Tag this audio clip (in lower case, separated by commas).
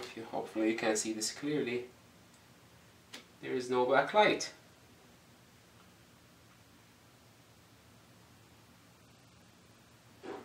speech